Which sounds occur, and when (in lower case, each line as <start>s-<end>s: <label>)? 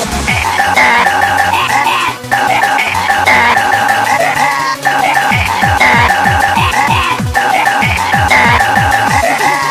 0.0s-9.7s: music
0.2s-2.1s: cough
2.3s-4.7s: cough
4.8s-7.2s: cough
7.3s-9.7s: cough